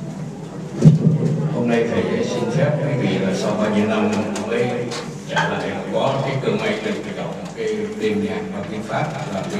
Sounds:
Speech

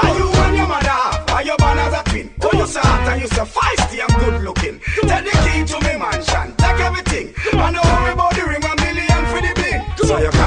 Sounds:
Music, Pop music

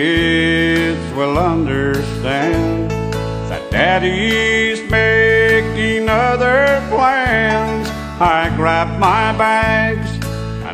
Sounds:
Music

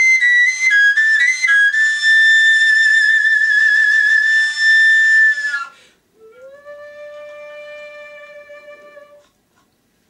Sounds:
playing flute

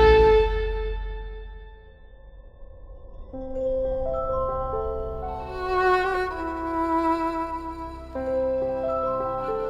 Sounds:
Music

